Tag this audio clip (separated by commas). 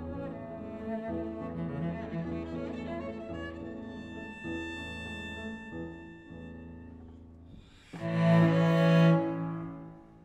Double bass, Bowed string instrument, Cello